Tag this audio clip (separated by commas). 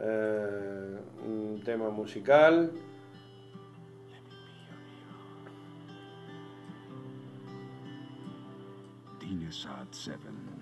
Music, Speech